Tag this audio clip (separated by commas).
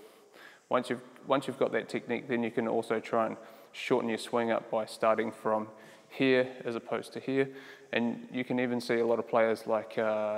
playing squash